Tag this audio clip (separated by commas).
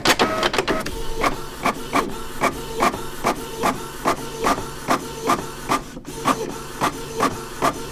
Printer, Mechanisms